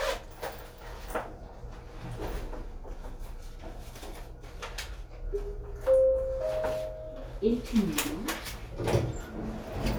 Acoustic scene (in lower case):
elevator